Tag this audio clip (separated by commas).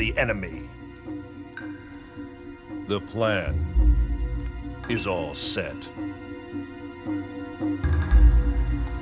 Music, Speech